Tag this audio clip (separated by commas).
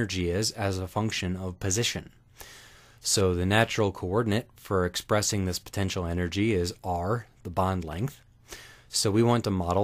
Speech